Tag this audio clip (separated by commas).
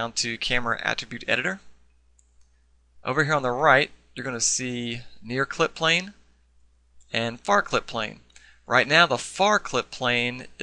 Speech